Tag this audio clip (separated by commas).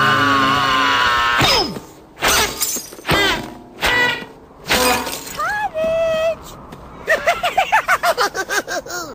Speech